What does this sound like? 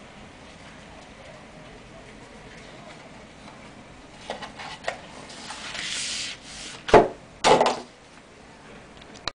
A loud clattering sound